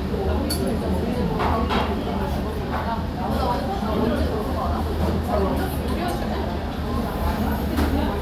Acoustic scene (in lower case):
restaurant